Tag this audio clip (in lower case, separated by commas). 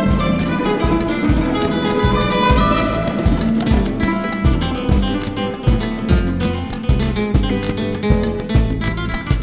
tender music, music